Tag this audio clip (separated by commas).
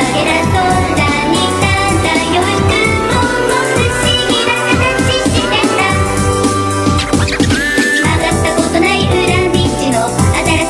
Music